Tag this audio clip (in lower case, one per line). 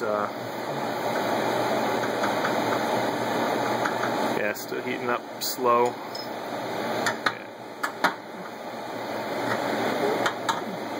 inside a small room
speech